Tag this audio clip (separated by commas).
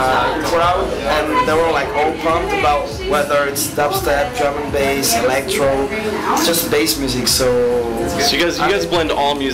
Drum, Musical instrument, Drum kit, Electronic music, Dubstep, Music, Speech